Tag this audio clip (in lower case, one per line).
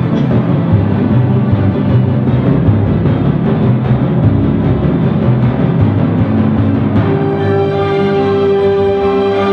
playing timpani